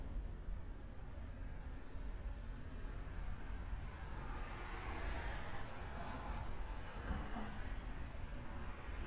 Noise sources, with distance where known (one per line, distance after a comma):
medium-sounding engine